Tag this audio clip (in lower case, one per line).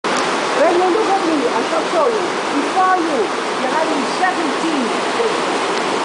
speech